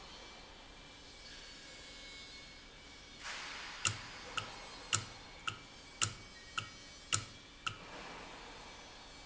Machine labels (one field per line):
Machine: valve